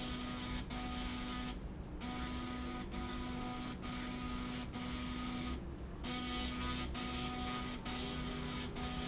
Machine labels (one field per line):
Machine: slide rail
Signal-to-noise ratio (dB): 0 dB